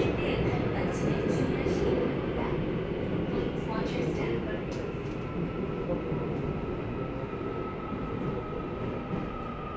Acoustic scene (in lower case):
subway train